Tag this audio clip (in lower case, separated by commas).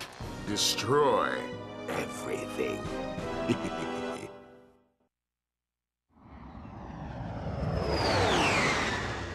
music, speech